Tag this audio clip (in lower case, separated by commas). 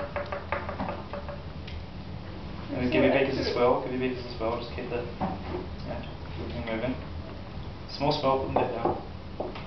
speech